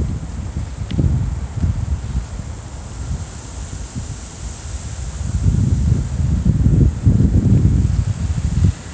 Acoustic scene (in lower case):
residential area